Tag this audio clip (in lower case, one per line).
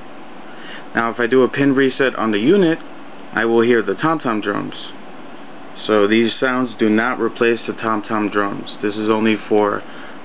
speech